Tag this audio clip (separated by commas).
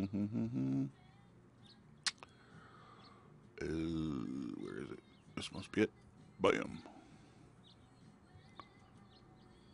Speech